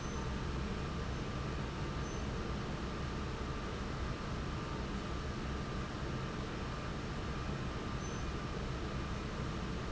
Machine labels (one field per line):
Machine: fan